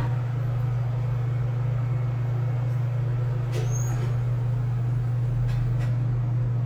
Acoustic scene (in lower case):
elevator